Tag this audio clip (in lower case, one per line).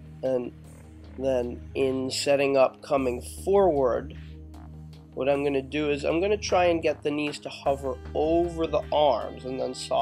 speech
music